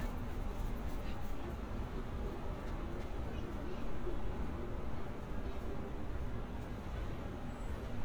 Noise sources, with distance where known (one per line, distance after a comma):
person or small group talking, far